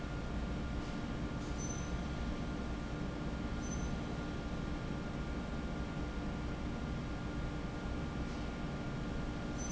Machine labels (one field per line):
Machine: fan